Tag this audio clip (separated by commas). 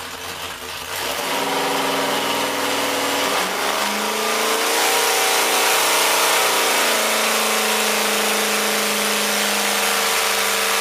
Heavy engine (low frequency)